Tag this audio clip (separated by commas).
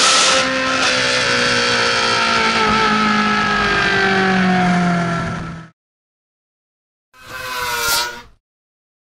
Vehicle, revving, Car